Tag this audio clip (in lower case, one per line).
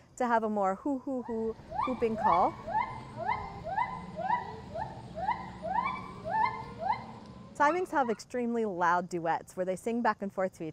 gibbon howling